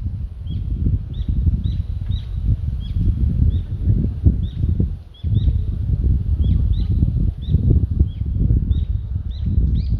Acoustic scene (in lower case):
residential area